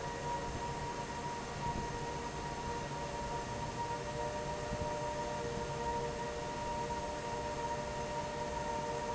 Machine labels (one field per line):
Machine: fan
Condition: normal